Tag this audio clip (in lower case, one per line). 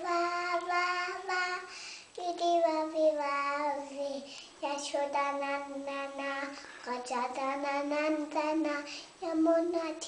child singing
singing